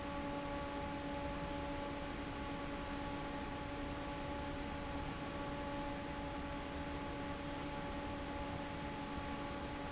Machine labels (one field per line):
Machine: fan